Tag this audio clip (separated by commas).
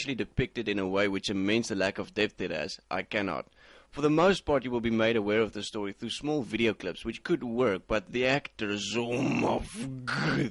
inside a small room, Speech